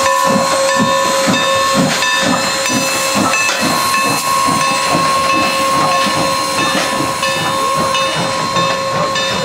A train and its bells is moving along the railway quickly